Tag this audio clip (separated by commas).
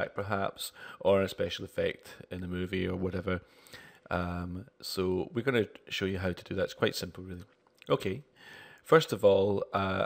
Speech